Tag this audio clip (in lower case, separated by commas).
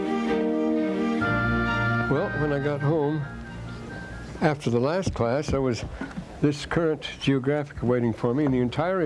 man speaking, music, monologue